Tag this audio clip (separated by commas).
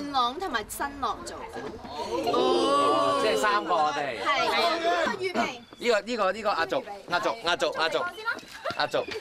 Speech